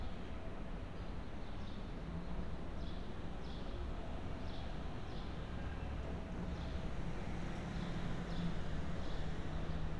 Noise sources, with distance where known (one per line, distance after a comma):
engine of unclear size, far